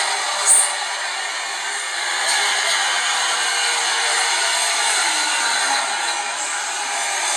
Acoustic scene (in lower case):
subway train